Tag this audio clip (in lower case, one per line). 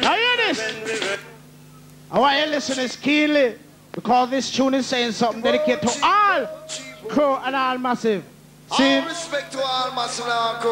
speech